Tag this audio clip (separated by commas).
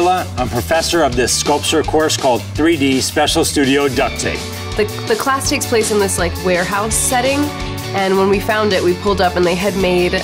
Speech, Music